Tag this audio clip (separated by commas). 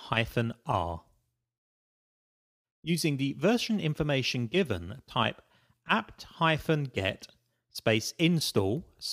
Speech